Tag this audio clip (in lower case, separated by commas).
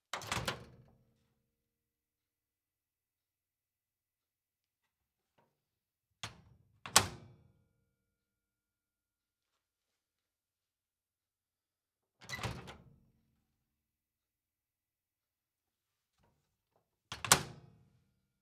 domestic sounds, microwave oven